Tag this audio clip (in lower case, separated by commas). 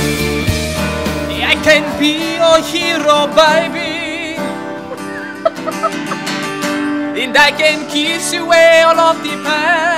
male singing, music